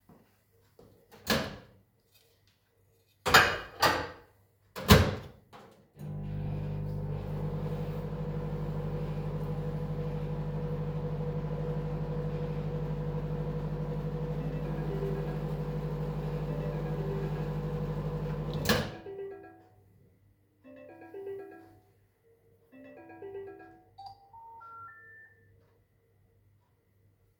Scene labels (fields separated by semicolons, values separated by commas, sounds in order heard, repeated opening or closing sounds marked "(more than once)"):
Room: kitchen; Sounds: microwave, cutlery and dishes, phone ringing